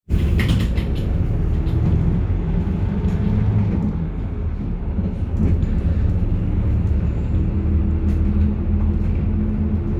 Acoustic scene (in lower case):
bus